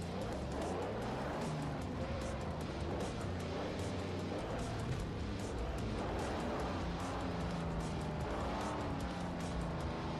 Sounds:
Music, Car, Vehicle

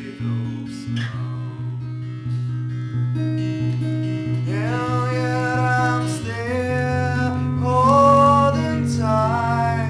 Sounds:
Music

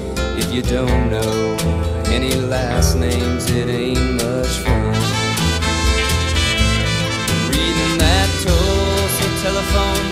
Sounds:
Music

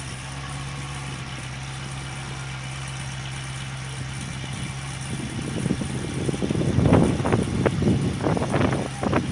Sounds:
Vehicle, Idling

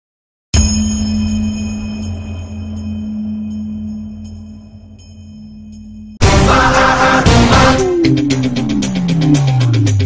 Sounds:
Music

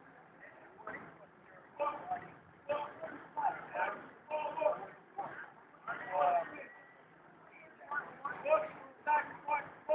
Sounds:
outside, rural or natural, Speech

